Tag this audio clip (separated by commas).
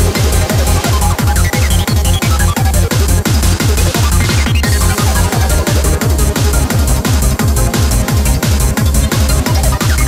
Music, Techno